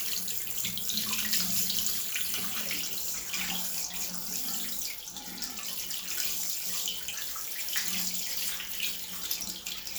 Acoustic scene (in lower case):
restroom